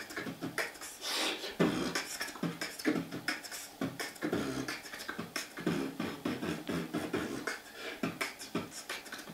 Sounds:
beatboxing

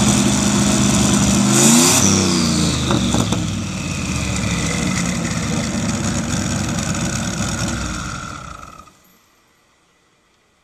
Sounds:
race car, vehicle, outside, urban or man-made

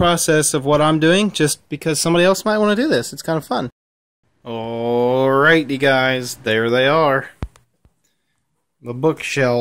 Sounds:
speech

